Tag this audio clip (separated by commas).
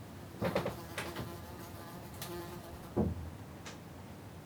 Buzz, Animal, Insect, Wild animals